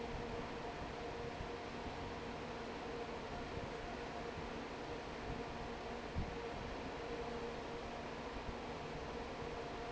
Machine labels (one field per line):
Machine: fan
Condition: normal